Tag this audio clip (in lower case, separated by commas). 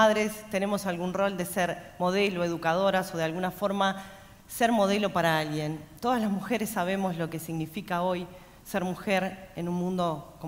speech